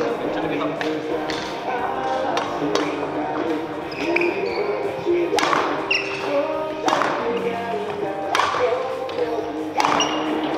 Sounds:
playing badminton

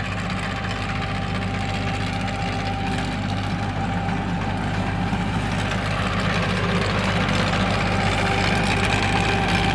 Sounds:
tractor digging

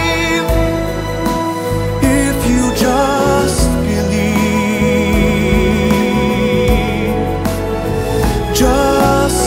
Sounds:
Music, Christmas music

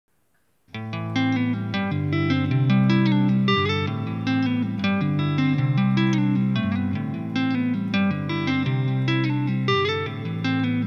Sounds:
tapping guitar

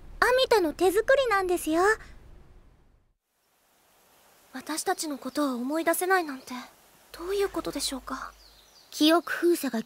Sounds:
Speech

